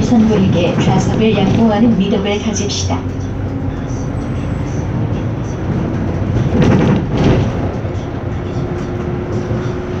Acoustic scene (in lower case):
bus